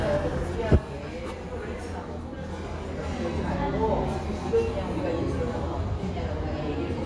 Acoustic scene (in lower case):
cafe